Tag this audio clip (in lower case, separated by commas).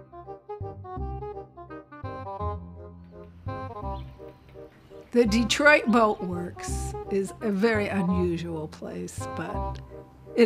music, speech